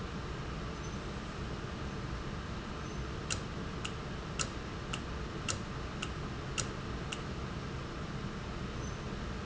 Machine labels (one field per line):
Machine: valve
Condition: normal